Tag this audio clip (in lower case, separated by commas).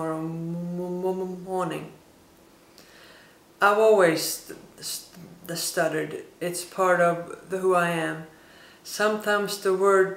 narration, woman speaking, speech